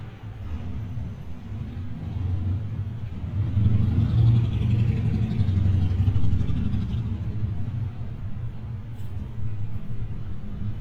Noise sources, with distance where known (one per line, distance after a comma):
engine of unclear size